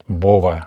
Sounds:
Speech, man speaking, Human voice

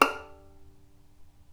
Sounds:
Bowed string instrument, Music, Musical instrument

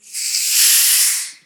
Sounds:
Hiss

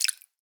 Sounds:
Liquid, Drip

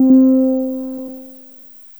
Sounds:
Keyboard (musical), Music, Piano, Musical instrument

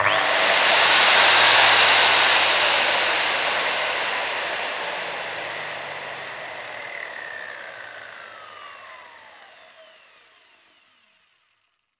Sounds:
Tools

